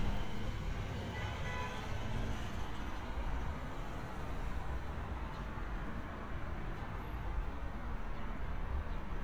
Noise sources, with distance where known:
car horn, far

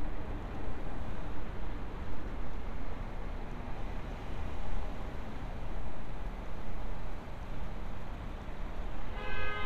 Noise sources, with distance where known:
car horn

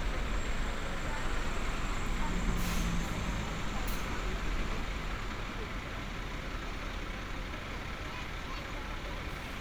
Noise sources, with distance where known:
large-sounding engine, near; person or small group talking

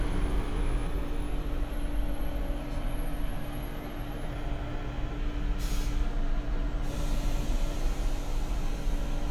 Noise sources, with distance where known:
large-sounding engine, near

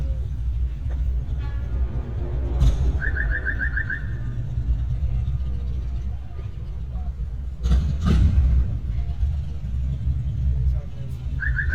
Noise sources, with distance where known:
medium-sounding engine, near; car horn; car alarm, near; person or small group talking, far

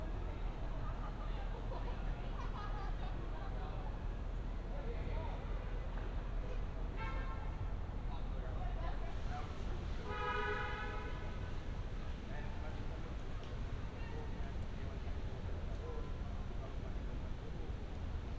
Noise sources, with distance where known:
car horn; person or small group talking

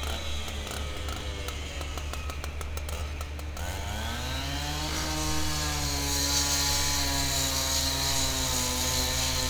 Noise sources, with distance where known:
chainsaw, near

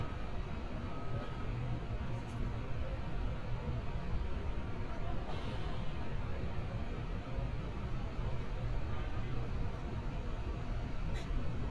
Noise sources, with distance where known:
large-sounding engine; person or small group talking

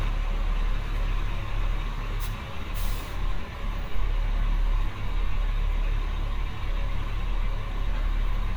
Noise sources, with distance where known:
large-sounding engine, near

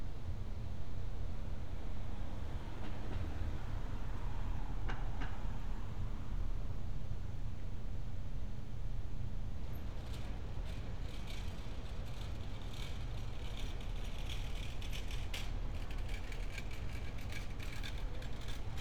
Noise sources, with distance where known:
background noise

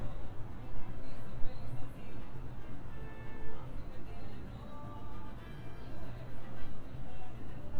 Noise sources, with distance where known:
background noise

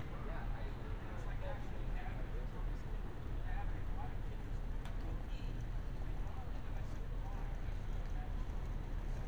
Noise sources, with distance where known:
person or small group talking, near

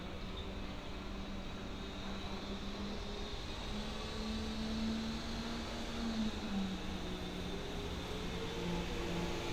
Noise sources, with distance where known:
engine of unclear size

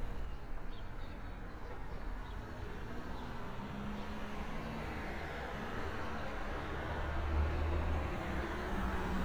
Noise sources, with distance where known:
large-sounding engine, far

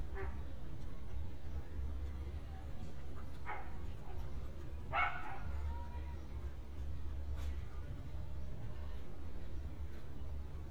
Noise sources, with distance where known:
dog barking or whining

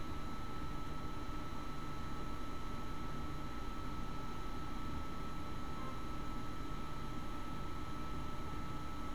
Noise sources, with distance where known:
background noise

